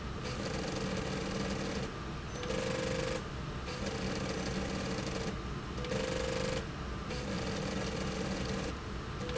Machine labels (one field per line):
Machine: slide rail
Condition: abnormal